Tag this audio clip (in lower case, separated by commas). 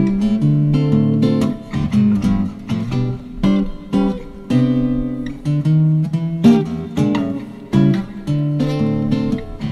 acoustic guitar, musical instrument, plucked string instrument, guitar, music, playing acoustic guitar